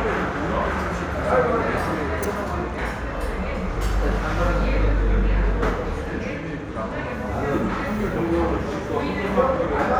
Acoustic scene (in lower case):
crowded indoor space